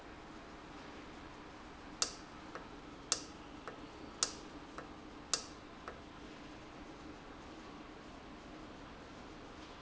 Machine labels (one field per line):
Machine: valve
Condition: normal